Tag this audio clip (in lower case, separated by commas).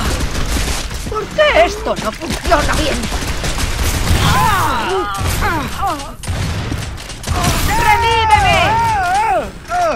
speech